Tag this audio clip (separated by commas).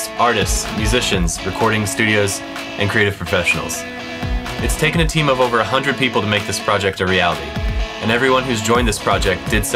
Music, Speech